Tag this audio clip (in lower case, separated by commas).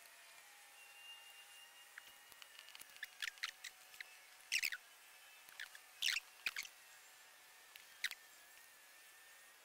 insect, patter, mouse pattering